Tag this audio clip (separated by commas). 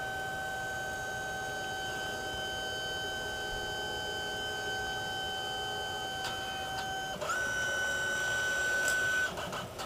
Printer, printer printing